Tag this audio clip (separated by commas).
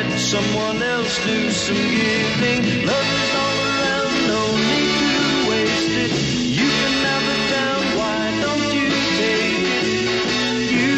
Music